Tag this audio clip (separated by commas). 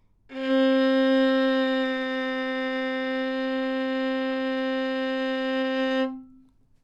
Musical instrument, Bowed string instrument, Music